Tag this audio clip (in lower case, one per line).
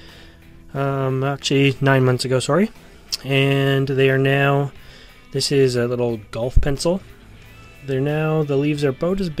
music
speech